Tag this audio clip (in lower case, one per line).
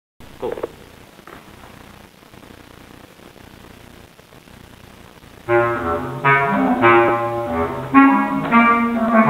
playing clarinet